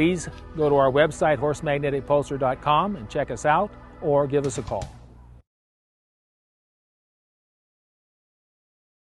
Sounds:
Speech

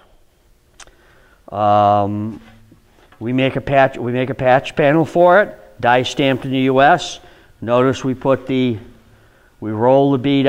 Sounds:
Speech

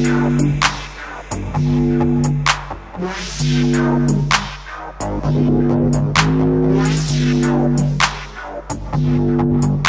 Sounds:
Dubstep, Music, Electronic music

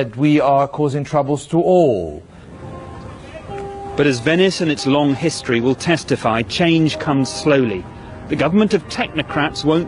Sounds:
Speech, Music

